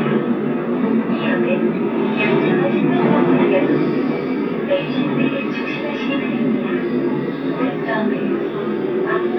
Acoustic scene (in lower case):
subway train